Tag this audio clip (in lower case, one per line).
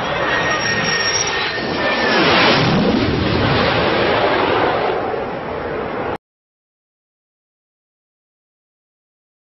airplane flyby